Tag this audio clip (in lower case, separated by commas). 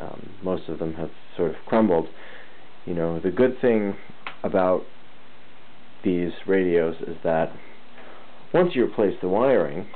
speech